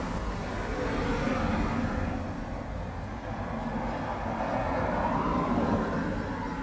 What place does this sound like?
street